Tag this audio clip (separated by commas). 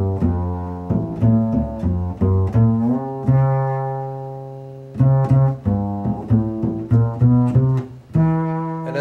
Double bass, Music, Cello, Speech, Guitar, Plucked string instrument, Musical instrument